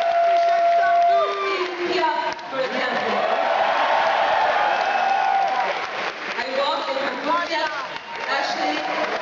Woman giving a speech to an excited crowd